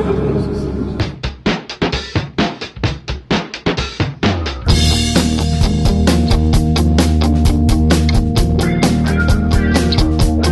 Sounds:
music, angry music

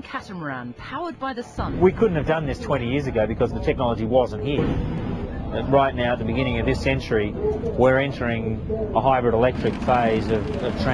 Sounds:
speech, motorboat

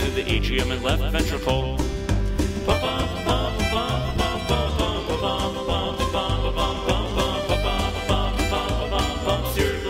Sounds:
music

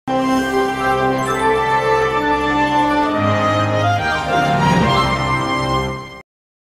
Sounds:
music

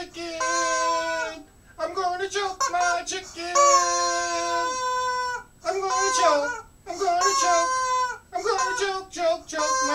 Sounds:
speech

